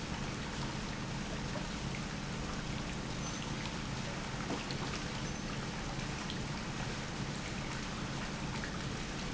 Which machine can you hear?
pump